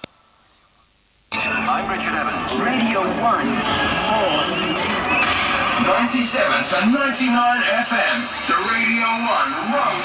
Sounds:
Speech

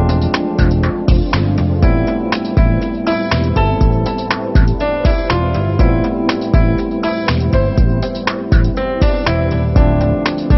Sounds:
Music, Background music

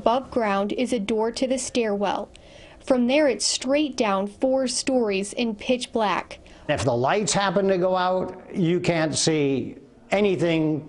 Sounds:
Speech

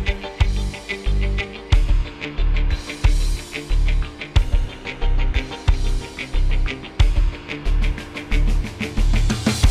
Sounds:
Music

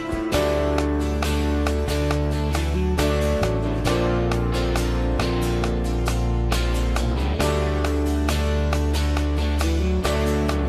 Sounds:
Music

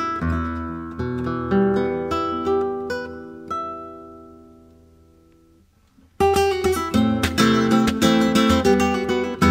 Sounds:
Music, Plucked string instrument

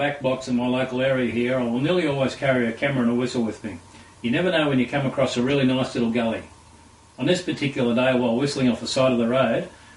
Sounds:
Speech

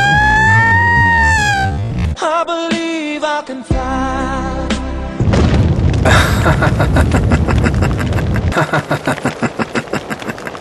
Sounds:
Boom, Music

